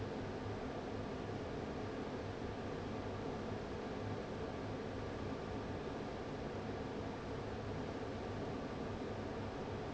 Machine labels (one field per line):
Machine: fan